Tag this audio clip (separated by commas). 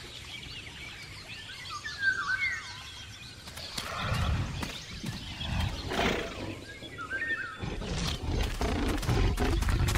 dinosaurs bellowing